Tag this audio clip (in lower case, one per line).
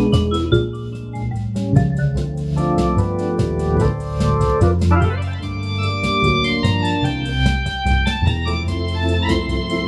playing hammond organ
organ
hammond organ